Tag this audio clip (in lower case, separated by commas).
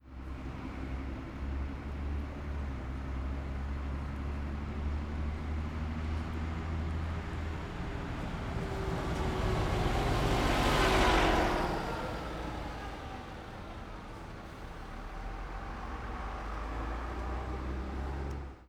motor vehicle (road), bus, vehicle